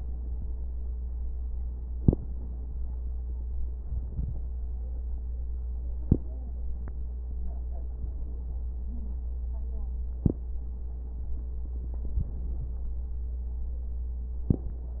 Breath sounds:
Inhalation: 1.89-2.34 s, 5.97-6.42 s, 10.17-10.62 s

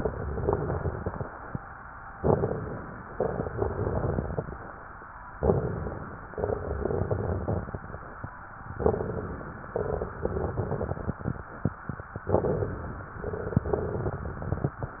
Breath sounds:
Inhalation: 2.15-3.08 s, 5.37-6.30 s, 8.75-9.68 s, 12.24-13.17 s
Exhalation: 0.00-1.50 s, 3.09-4.59 s, 6.36-7.97 s, 9.71-11.33 s, 13.19-14.80 s
Crackles: 0.00-1.50 s, 2.15-3.08 s, 3.09-4.59 s, 5.37-6.30 s, 6.36-7.97 s, 8.75-9.68 s, 9.71-11.33 s, 12.24-13.17 s, 13.19-14.80 s

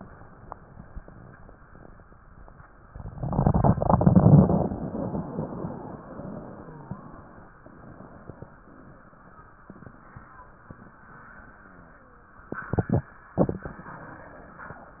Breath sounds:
Inhalation: 2.84-3.73 s
Exhalation: 3.82-7.63 s
Crackles: 2.85-3.77 s, 3.82-7.63 s

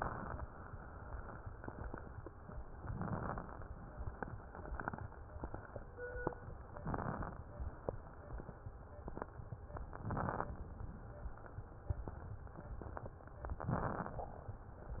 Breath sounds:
Inhalation: 2.90-3.70 s, 6.85-7.50 s, 9.96-10.61 s, 13.68-14.33 s
Crackles: 2.90-3.70 s, 6.85-7.50 s, 9.96-10.61 s, 13.68-14.33 s

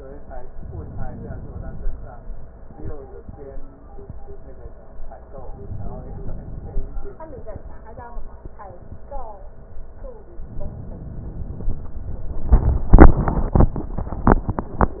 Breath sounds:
Inhalation: 0.56-2.02 s, 5.40-6.85 s, 10.52-11.97 s

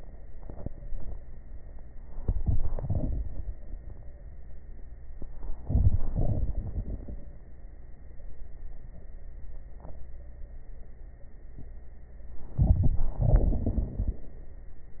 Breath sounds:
Inhalation: 2.21-3.53 s, 5.56-6.01 s, 12.60-13.18 s
Exhalation: 6.02-7.18 s, 13.15-14.24 s
Crackles: 2.21-3.53 s, 6.02-7.18 s, 13.15-14.24 s

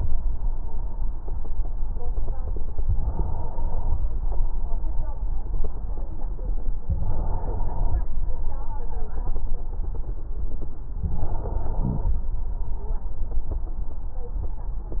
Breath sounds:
Inhalation: 2.87-4.04 s, 6.93-8.10 s, 11.04-12.21 s

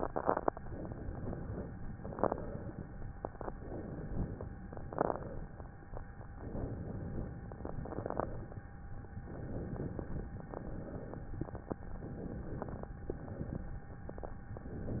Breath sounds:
Inhalation: 0.68-1.75 s, 3.51-4.50 s, 6.38-7.42 s, 9.34-10.38 s, 12.05-12.92 s
Exhalation: 1.88-2.87 s, 4.67-5.54 s, 7.63-8.50 s, 10.53-11.29 s, 13.11-13.81 s

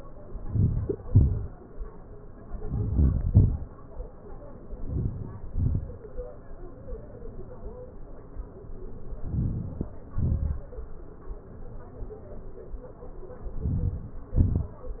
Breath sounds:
Inhalation: 0.41-0.94 s, 2.63-3.11 s, 4.87-5.37 s, 9.24-9.94 s, 13.60-14.23 s
Exhalation: 1.08-1.49 s, 3.27-3.60 s, 5.51-5.97 s, 10.19-10.65 s, 14.40-14.85 s

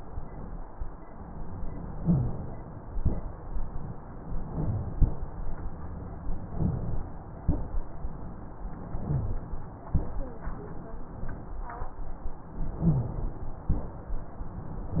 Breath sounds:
Inhalation: 1.97-2.56 s, 4.29-4.90 s, 6.36-7.16 s, 8.82-9.54 s
Exhalation: 2.85-3.32 s, 4.93-5.26 s, 7.44-7.97 s, 9.92-10.46 s, 13.70-14.23 s
Wheeze: 1.97-2.30 s, 7.44-7.71 s, 12.85-13.17 s
Rhonchi: 4.50-4.82 s, 6.55-6.89 s, 8.97-9.32 s

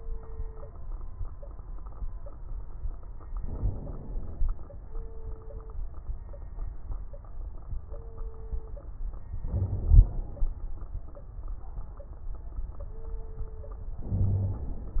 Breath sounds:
Inhalation: 3.37-4.42 s, 9.44-10.49 s, 14.03-15.00 s
Wheeze: 14.16-14.64 s
Crackles: 3.34-4.42 s, 9.44-10.49 s

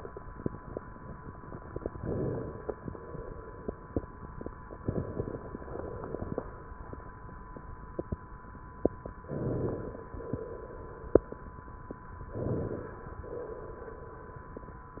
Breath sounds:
Inhalation: 1.92-2.74 s, 4.84-5.71 s, 9.23-10.09 s, 12.28-13.23 s
Exhalation: 2.74-3.72 s, 5.71-6.57 s, 10.11-11.07 s, 13.26-14.50 s

